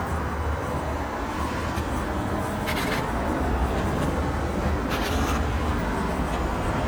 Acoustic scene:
street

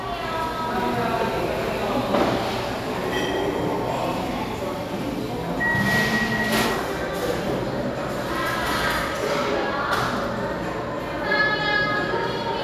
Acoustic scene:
cafe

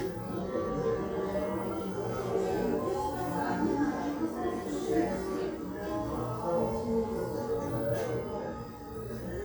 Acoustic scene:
crowded indoor space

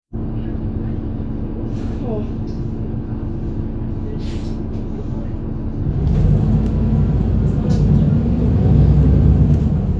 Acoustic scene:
bus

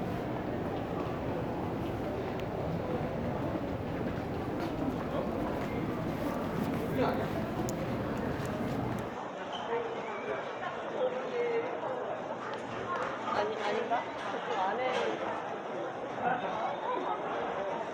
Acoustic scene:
crowded indoor space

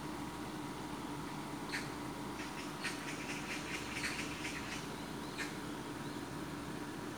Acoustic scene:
park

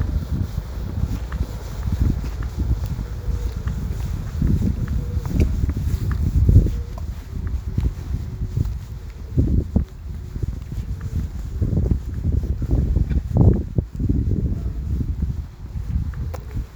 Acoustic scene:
residential area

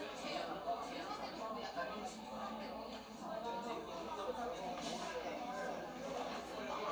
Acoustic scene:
crowded indoor space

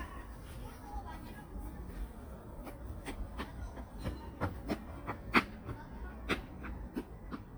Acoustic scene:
park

